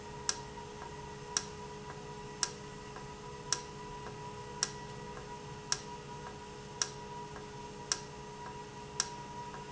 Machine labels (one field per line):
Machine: valve